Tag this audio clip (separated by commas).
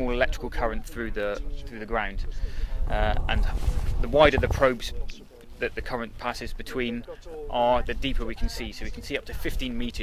Speech